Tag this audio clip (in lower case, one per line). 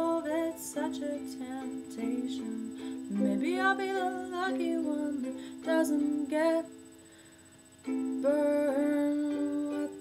music
ukulele
inside a small room